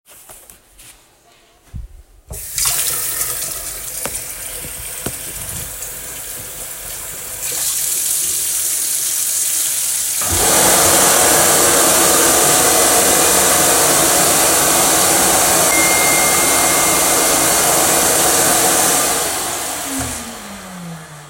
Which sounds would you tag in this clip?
running water, vacuum cleaner, phone ringing